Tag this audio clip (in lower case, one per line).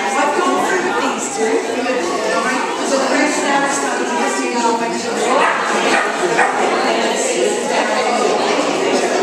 dog
animal
speech
pets